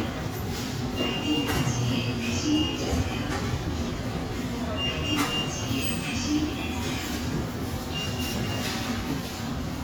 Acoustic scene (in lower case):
subway station